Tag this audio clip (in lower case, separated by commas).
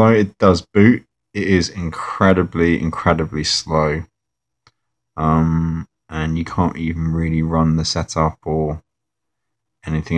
speech, inside a small room